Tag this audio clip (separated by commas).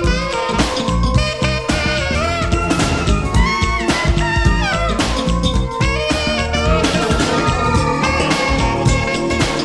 Music